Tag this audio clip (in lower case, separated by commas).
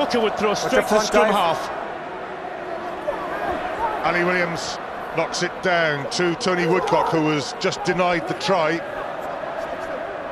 speech